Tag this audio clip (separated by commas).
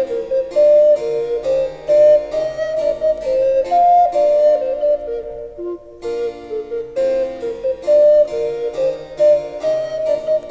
playing harpsichord